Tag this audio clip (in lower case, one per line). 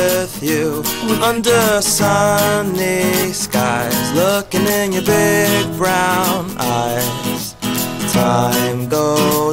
music